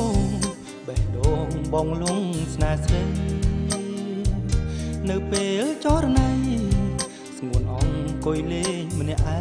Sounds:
Music

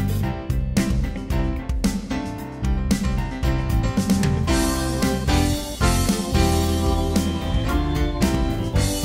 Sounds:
Music

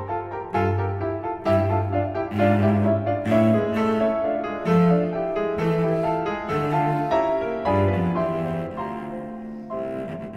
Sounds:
playing cello, Keyboard (musical), Music, Piano, Bowed string instrument, Double bass, Musical instrument, Cello, Classical music

